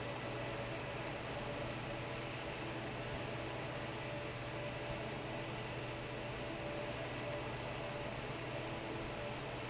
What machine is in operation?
fan